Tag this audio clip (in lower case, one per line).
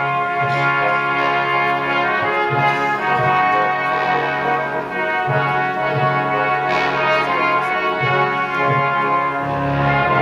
trombone
classical music
music
brass instrument
orchestra